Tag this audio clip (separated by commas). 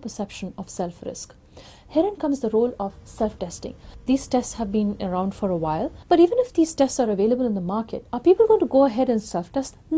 Speech